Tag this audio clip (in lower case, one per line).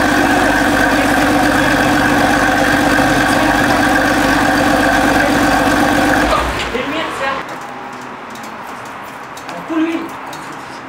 speech